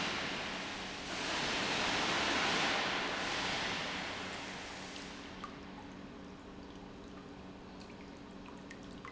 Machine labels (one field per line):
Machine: pump